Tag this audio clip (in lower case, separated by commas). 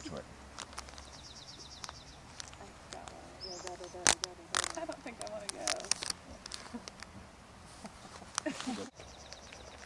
speech, outside, rural or natural, bird, bird song